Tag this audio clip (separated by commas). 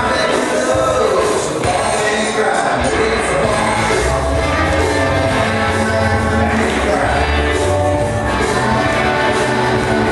Music